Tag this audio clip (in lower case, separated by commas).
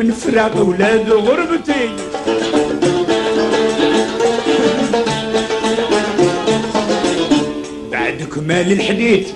music, middle eastern music